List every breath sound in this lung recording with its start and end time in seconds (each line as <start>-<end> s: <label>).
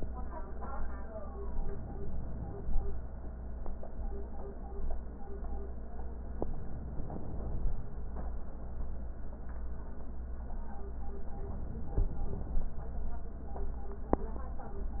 1.50-2.89 s: inhalation
6.50-7.90 s: inhalation
11.27-12.74 s: inhalation